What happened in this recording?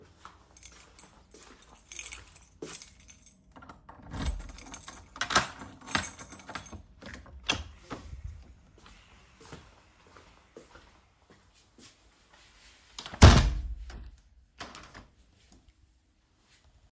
forgot to close my windows so I came back ,opened the door and then closed windows